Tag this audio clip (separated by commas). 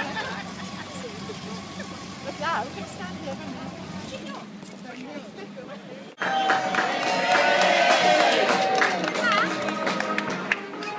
Music, Speech